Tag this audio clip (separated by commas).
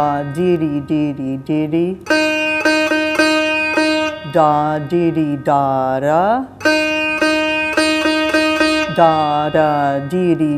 playing sitar